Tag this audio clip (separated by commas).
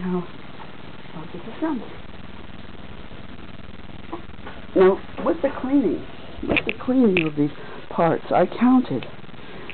Speech